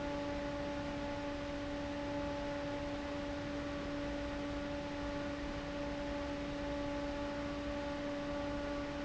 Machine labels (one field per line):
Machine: fan